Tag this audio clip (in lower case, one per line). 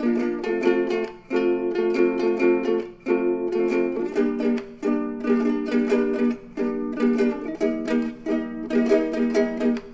music
ukulele